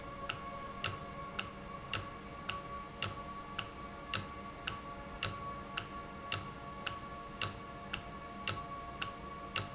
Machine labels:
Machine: valve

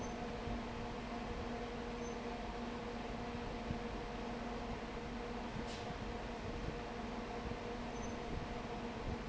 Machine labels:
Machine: fan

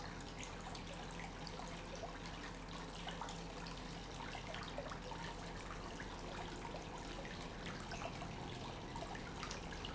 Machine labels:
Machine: pump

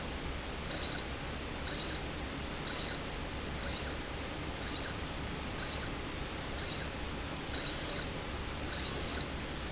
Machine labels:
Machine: slide rail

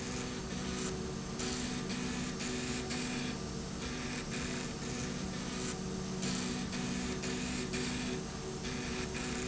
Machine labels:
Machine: slide rail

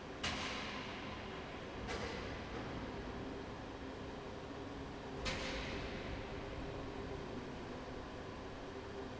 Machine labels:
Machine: fan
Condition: abnormal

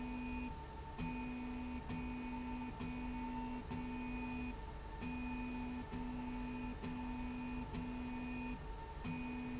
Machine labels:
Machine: slide rail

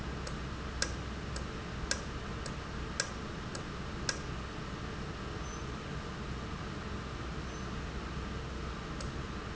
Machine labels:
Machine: valve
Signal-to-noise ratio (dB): -6 dB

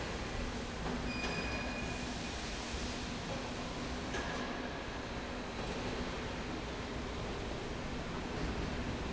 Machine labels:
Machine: slide rail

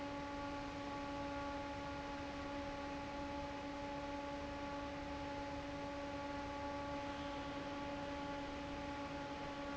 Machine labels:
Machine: fan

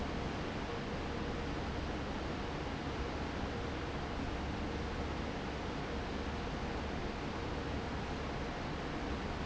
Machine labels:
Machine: fan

